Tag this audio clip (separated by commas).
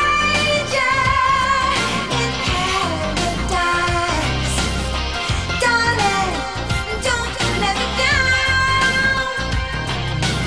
Music, Music of Asia